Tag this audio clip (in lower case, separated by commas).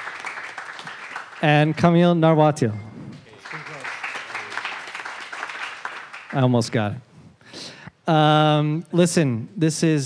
speech